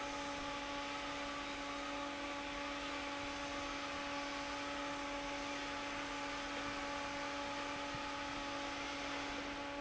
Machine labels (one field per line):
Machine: fan